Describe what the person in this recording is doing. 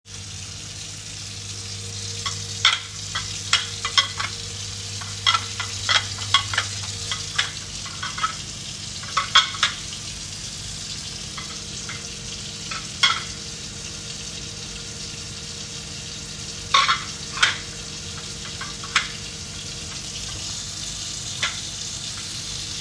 I was washing the plates while the tap was running and the microwave was on.